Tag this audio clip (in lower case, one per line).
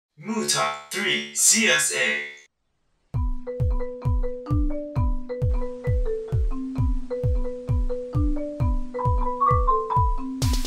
mallet percussion
xylophone
glockenspiel